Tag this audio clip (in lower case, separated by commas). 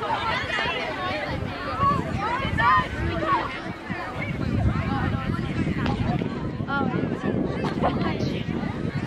speech, outside, rural or natural